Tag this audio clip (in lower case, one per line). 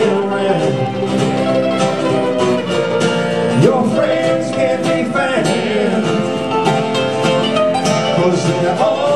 banjo
country
music
singing